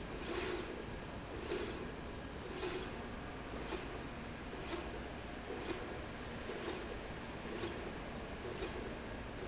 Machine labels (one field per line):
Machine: slide rail